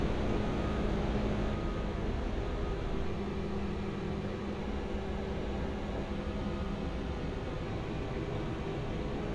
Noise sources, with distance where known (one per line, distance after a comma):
large-sounding engine
reverse beeper, far